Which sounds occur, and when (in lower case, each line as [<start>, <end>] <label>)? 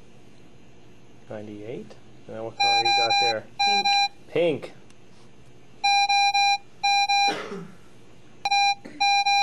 [0.00, 9.42] mechanisms
[3.57, 3.94] speech
[4.26, 4.75] man speaking
[4.86, 4.93] tick
[5.06, 5.35] generic impact sounds
[7.26, 7.78] cough
[8.98, 9.42] bleep